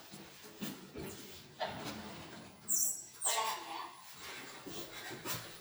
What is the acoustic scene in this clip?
elevator